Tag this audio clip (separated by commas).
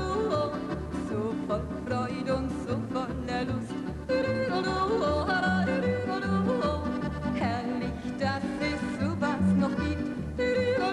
yodelling